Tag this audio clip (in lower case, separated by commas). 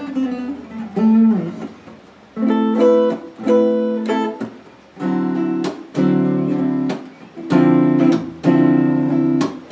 guitar, musical instrument, acoustic guitar, playing acoustic guitar, music, plucked string instrument